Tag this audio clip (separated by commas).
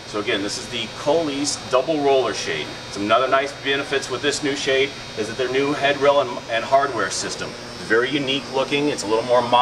Speech